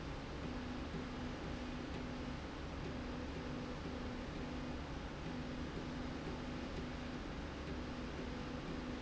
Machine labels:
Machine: slide rail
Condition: normal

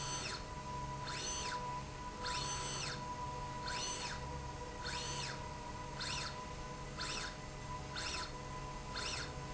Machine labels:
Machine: slide rail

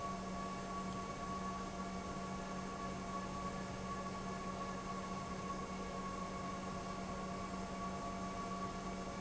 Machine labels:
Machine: pump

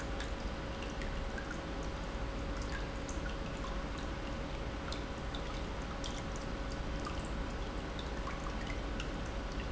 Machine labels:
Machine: pump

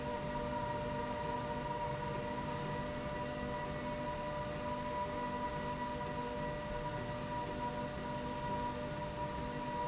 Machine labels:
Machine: slide rail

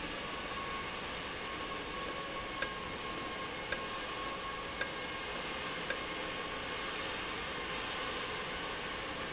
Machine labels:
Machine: valve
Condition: normal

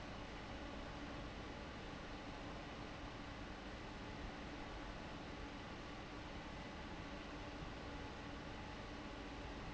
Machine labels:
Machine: fan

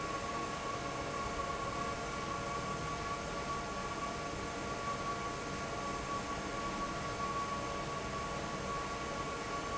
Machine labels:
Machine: fan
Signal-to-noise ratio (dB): -6 dB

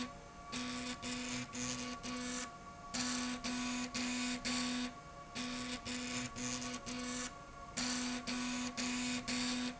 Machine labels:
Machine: slide rail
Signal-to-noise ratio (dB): 6 dB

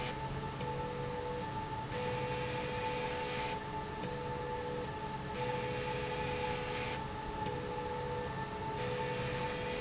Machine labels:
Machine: slide rail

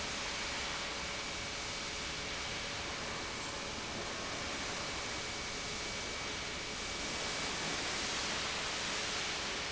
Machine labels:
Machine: pump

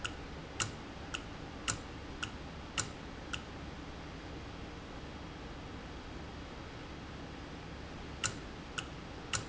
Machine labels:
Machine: valve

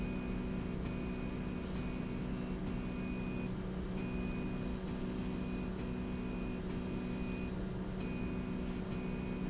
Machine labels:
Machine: slide rail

